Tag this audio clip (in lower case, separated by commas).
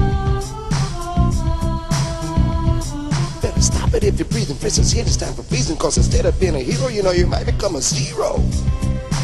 music